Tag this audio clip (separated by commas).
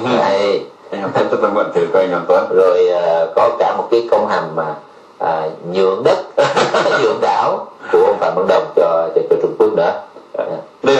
Speech